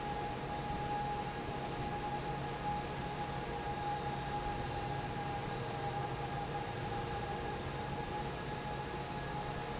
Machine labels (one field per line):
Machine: fan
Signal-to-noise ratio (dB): -6 dB